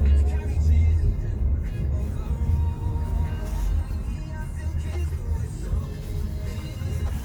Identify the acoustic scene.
car